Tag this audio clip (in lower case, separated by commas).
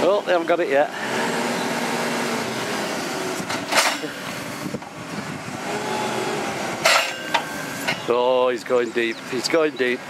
speech, vehicle, truck